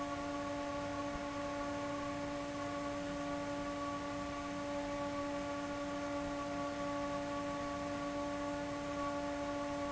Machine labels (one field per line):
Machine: fan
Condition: abnormal